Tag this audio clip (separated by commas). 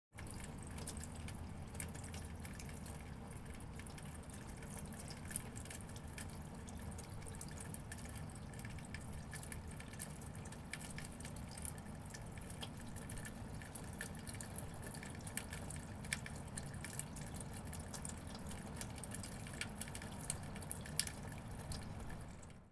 dribble, Water, Rain, Pour, Liquid, Raindrop